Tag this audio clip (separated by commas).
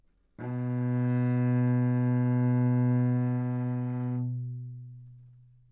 Musical instrument, Bowed string instrument, Music